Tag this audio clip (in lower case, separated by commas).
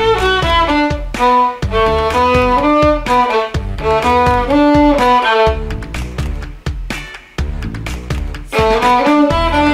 music, fiddle, musical instrument